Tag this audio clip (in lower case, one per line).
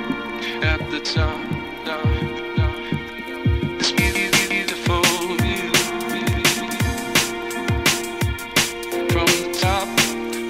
music